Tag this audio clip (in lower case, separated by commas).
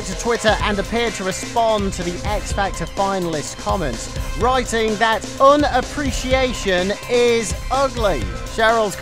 music, speech